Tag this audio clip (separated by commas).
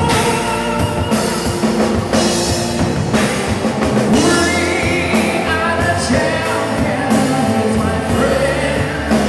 Music, Background music